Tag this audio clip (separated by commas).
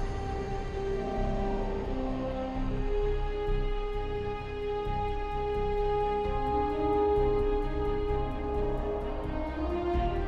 Music